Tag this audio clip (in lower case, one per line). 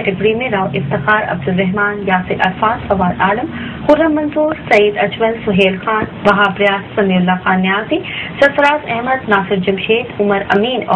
speech